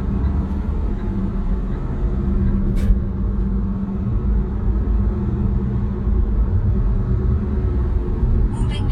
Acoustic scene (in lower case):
car